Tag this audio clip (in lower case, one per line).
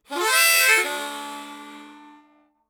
musical instrument
music
harmonica